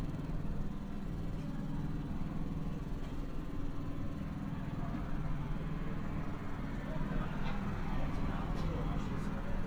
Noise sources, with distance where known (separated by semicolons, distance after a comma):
engine of unclear size; person or small group talking, near